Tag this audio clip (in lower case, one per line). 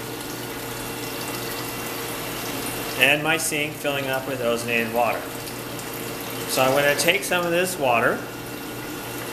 speech
gurgling